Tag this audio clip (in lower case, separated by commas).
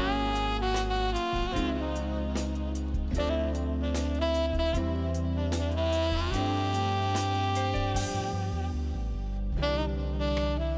music